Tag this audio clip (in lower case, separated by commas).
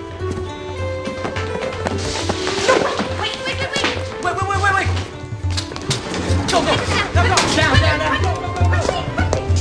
speech, music